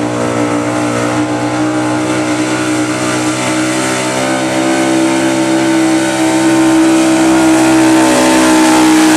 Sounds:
Vehicle, Car

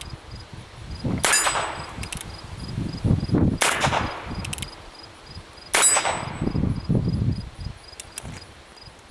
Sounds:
Silence, outside, rural or natural

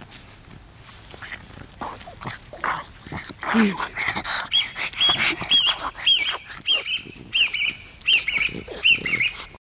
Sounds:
Animal, canids, Dog, Domestic animals

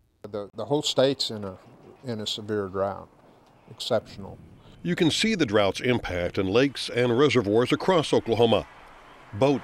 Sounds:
Speech

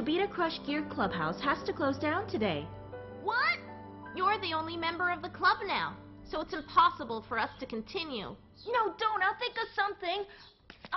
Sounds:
Conversation

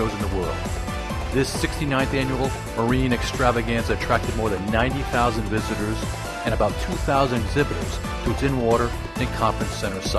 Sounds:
Music, Speech

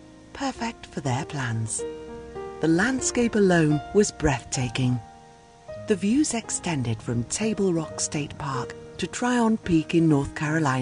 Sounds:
Speech, Music

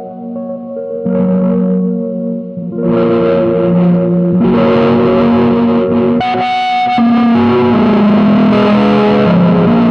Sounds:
Effects unit, Music, Distortion

